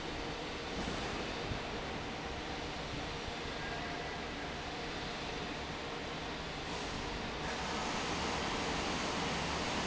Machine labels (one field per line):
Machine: fan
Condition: normal